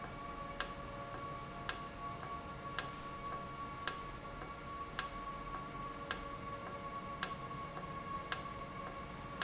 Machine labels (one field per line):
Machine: valve